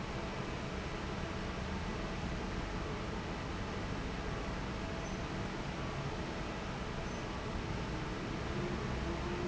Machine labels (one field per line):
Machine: fan